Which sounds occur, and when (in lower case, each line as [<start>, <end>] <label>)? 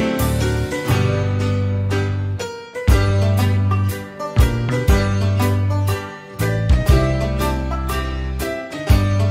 [0.00, 9.30] music